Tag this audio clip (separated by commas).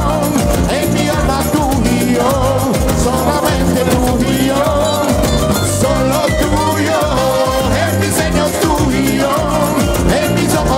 Salsa music, Music